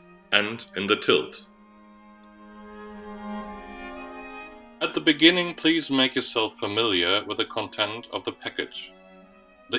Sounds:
Speech, Musical instrument, Violin, Music

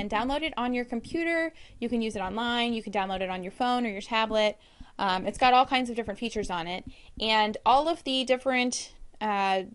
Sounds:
Speech

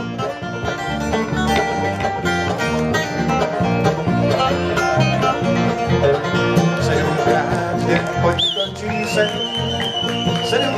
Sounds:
Music, Country

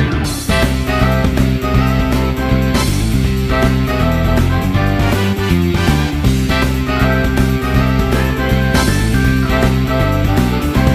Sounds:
Music

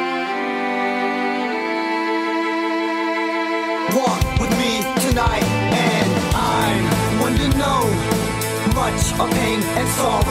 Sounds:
Music

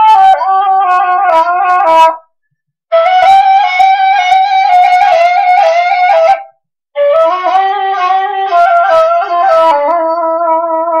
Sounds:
Flute, Music

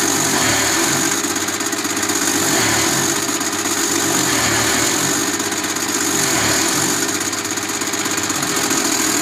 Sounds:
Engine

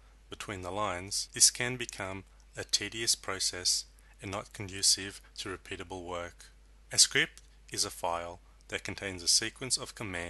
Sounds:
Speech

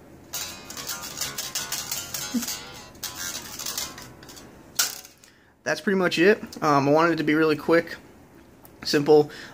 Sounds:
inside a small room, Guitar, Speech, Music

